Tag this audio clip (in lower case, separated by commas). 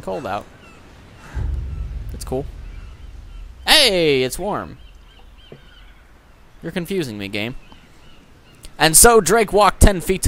speech, outside, rural or natural